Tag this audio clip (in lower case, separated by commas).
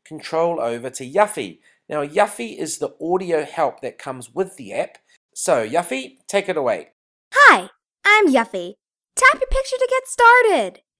speech